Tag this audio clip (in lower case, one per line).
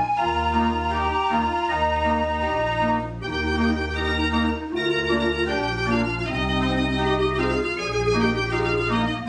music